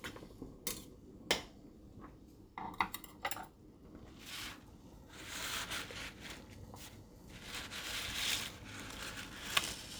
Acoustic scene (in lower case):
kitchen